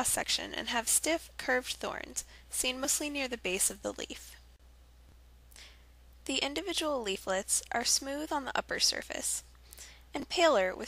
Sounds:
Speech

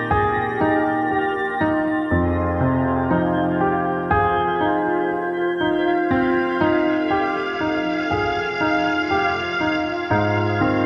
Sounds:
Music, Ambient music, New-age music

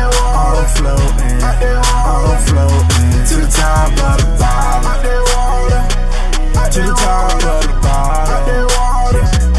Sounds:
Music

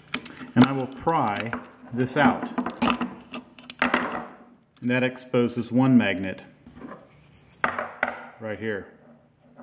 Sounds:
Speech, inside a small room

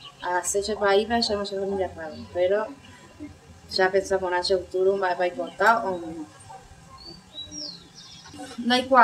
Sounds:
Speech

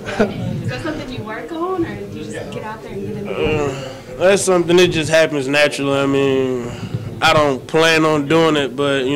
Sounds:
Speech

